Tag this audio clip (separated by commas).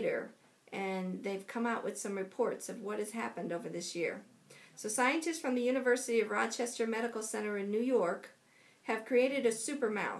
Speech